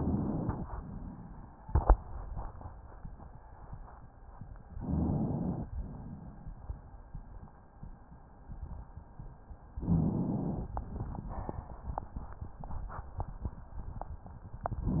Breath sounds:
0.00-0.65 s: inhalation
0.65-1.58 s: exhalation
4.74-5.67 s: inhalation
5.79-6.72 s: exhalation
9.77-10.70 s: inhalation
10.76-11.69 s: exhalation

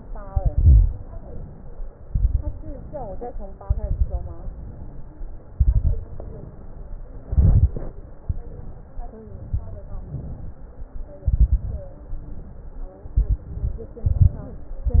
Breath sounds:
0.17-0.93 s: exhalation
0.17-0.93 s: crackles
0.99-1.94 s: inhalation
1.96-2.71 s: exhalation
1.96-2.71 s: crackles
2.72-3.67 s: inhalation
3.69-4.44 s: exhalation
3.69-4.44 s: crackles
4.52-5.47 s: inhalation
5.53-6.04 s: exhalation
5.53-6.04 s: crackles
6.12-7.16 s: inhalation
7.28-7.92 s: exhalation
7.28-7.92 s: crackles
8.21-9.10 s: inhalation
9.27-10.03 s: exhalation
9.27-10.03 s: crackles
10.16-10.92 s: inhalation
11.23-11.99 s: exhalation
11.23-11.99 s: crackles
12.09-12.98 s: inhalation
13.05-13.55 s: exhalation
13.05-13.55 s: crackles
13.55-13.98 s: inhalation
14.00-14.45 s: exhalation
14.00-14.45 s: crackles
14.50-15.00 s: inhalation

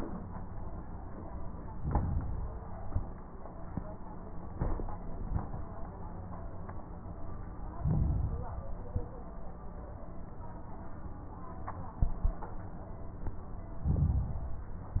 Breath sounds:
1.67-2.69 s: inhalation
1.67-2.69 s: crackles
2.77-3.25 s: exhalation
2.77-3.25 s: crackles
7.71-8.74 s: inhalation
7.71-8.74 s: crackles
8.82-9.29 s: exhalation
8.82-9.29 s: crackles
13.85-14.88 s: inhalation
13.85-14.88 s: crackles

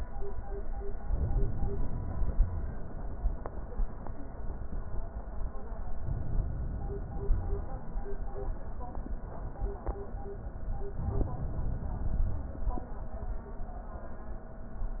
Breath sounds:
1.10-2.36 s: inhalation
2.36-2.65 s: wheeze
5.99-7.37 s: inhalation
7.37-7.64 s: wheeze
11.00-12.68 s: inhalation

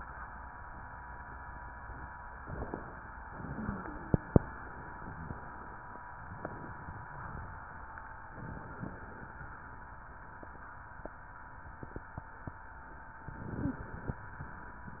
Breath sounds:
3.51-4.14 s: wheeze
5.08-5.38 s: wheeze
13.27-14.15 s: inhalation
13.55-13.87 s: wheeze

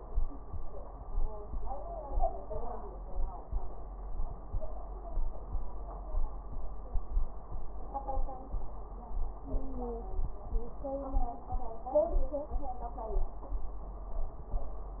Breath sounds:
9.46-10.11 s: wheeze

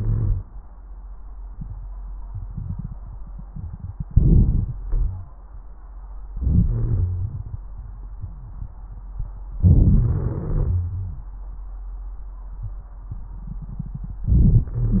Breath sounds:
0.00-0.47 s: inhalation
0.00-0.47 s: wheeze
4.13-4.79 s: inhalation
4.13-4.79 s: crackles
4.82-5.37 s: exhalation
4.82-5.37 s: wheeze
6.30-6.70 s: inhalation
6.71-7.61 s: exhalation
6.71-7.61 s: wheeze
9.61-10.33 s: inhalation
10.36-11.29 s: exhalation
10.36-11.29 s: wheeze
14.25-14.70 s: inhalation
14.25-14.70 s: crackles
14.69-15.00 s: exhalation
14.69-15.00 s: wheeze

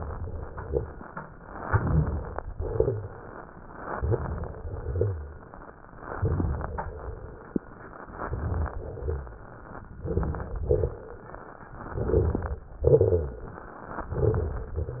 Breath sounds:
1.67-2.34 s: crackles
1.69-2.41 s: inhalation
2.41-3.13 s: exhalation
2.41-3.13 s: crackles
3.85-4.52 s: inhalation
3.85-4.52 s: crackles
4.55-5.22 s: exhalation
4.55-5.22 s: crackles
6.13-6.79 s: inhalation
6.13-6.79 s: crackles
6.85-7.51 s: exhalation
6.85-7.51 s: crackles
8.04-8.71 s: inhalation
8.04-8.71 s: crackles
8.77-9.43 s: exhalation
8.77-9.43 s: crackles
10.02-10.68 s: inhalation
10.02-10.68 s: crackles
10.70-11.21 s: exhalation
10.70-11.21 s: crackles
11.80-12.56 s: inhalation
11.80-12.56 s: crackles
12.88-13.64 s: exhalation
12.88-13.64 s: crackles
14.04-14.80 s: inhalation
14.04-14.80 s: crackles

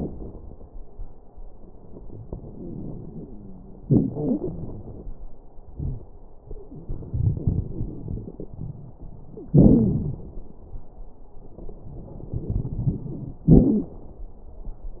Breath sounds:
2.42-3.83 s: inhalation
2.42-3.83 s: wheeze
3.82-5.12 s: exhalation
3.82-5.12 s: crackles
5.75-6.04 s: wheeze
6.78-8.95 s: inhalation
6.78-8.95 s: crackles
9.54-10.30 s: exhalation
9.54-10.30 s: crackles
12.33-13.45 s: inhalation
12.33-13.45 s: crackles
13.51-13.97 s: exhalation
13.51-13.97 s: wheeze

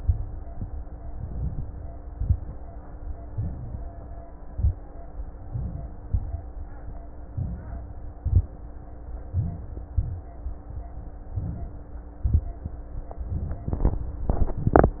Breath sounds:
0.99-1.92 s: inhalation
2.05-2.48 s: crackles
2.05-2.56 s: exhalation
3.29-4.22 s: inhalation
4.45-4.80 s: exhalation
4.45-4.81 s: crackles
5.43-6.00 s: inhalation
6.02-6.46 s: exhalation
6.06-6.43 s: crackles
7.33-8.11 s: inhalation
8.21-8.53 s: exhalation
9.29-9.90 s: inhalation
9.90-10.53 s: exhalation
11.34-12.16 s: inhalation
12.18-12.70 s: exhalation

